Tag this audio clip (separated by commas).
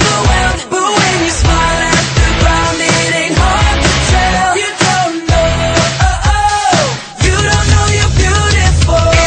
Music